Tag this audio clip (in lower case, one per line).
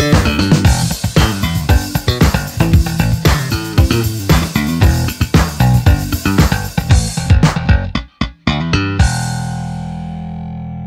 playing bass drum